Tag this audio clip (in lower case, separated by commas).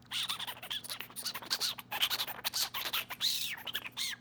animal